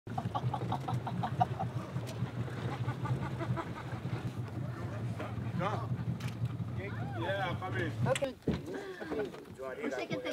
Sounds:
Speech, canoe

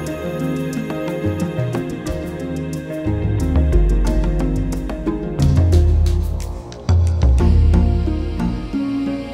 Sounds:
Music

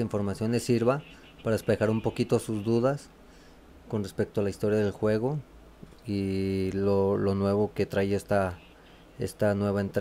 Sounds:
Speech

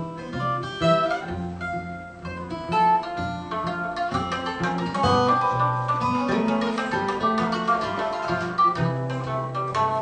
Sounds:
Pizzicato, Guitar, Music

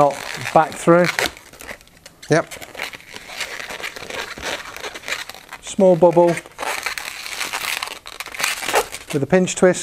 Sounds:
Crumpling, Speech, inside a small room

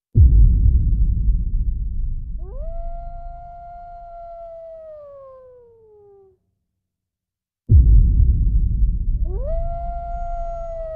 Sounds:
coyote howling

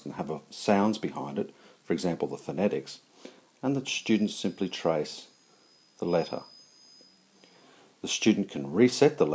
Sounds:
Speech

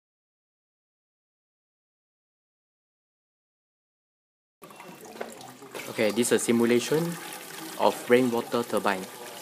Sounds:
Speech

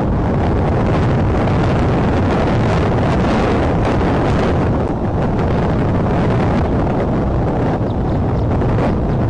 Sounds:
Rustling leaves

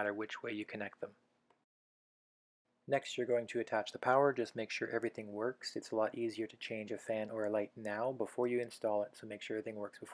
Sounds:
Speech

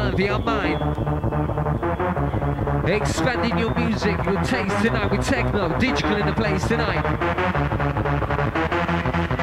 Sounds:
Music, Electronic music, Speech, Techno

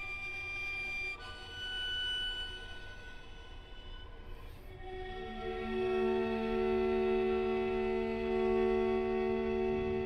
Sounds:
Bowed string instrument, fiddle, Musical instrument, Music

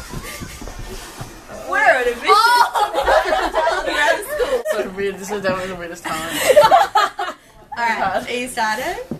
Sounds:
Speech, inside a large room or hall

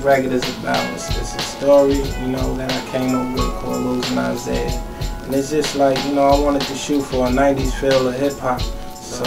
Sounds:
Speech, Music

